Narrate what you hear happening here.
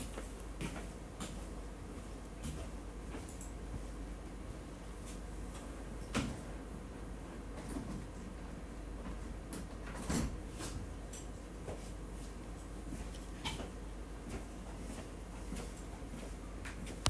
I walked to the window. I opened the window with my keys in my hands. Then I walked back to my desk.